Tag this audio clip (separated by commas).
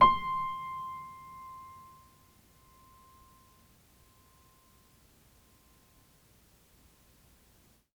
Piano, Music, Keyboard (musical), Musical instrument